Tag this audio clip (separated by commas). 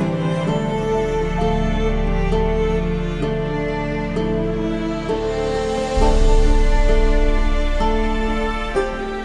Soundtrack music, Background music, Music